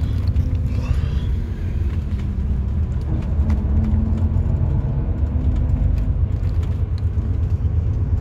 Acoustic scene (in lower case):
car